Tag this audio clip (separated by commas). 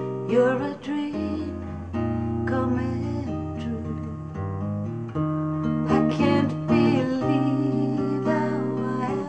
Music